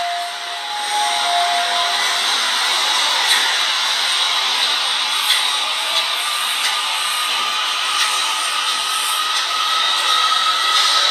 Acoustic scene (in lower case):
subway station